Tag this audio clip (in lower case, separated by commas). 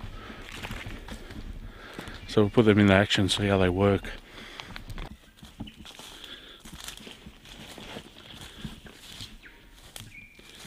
speech